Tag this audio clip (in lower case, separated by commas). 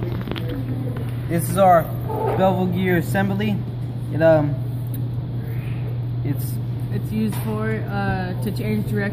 speech